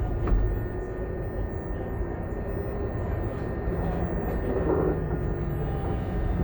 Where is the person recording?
on a bus